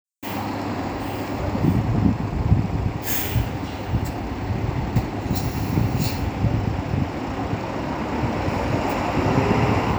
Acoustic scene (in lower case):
street